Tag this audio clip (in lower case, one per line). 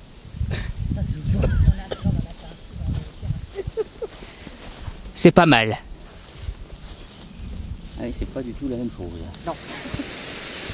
speech